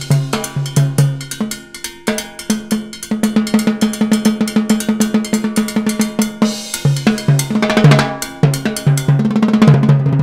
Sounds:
musical instrument, hi-hat, drum kit, drum, snare drum, bass drum, music, cymbal

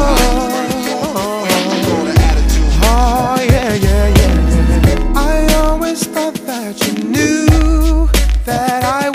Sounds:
reggae, music

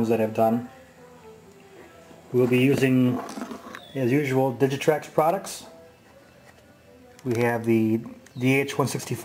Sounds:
speech

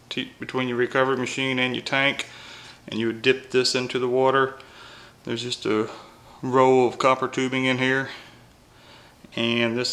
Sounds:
speech

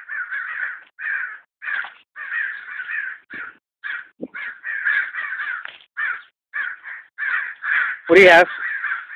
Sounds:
crow, crow cawing, caw, speech

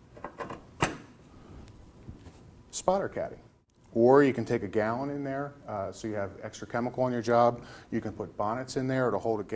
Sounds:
inside a small room, speech

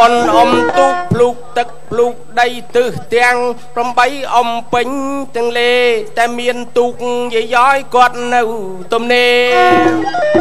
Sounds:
speech, music

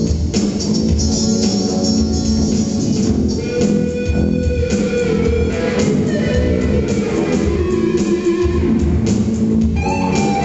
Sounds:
plucked string instrument, music, bass guitar, musical instrument

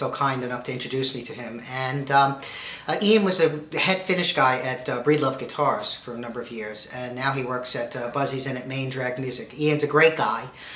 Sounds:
speech

